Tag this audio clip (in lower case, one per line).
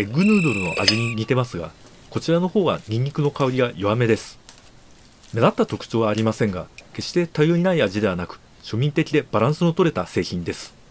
speech